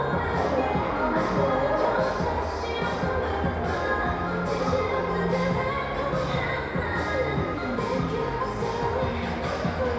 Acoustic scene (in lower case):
crowded indoor space